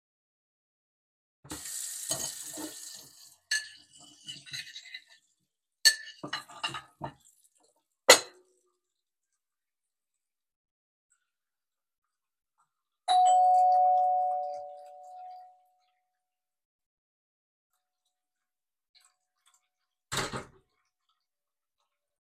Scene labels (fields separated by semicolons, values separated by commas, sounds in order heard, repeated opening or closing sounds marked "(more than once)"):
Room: kitchen, hallway; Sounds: running water, cutlery and dishes, bell ringing, door